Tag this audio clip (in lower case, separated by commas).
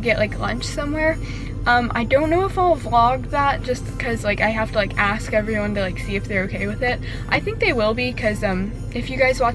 speech, music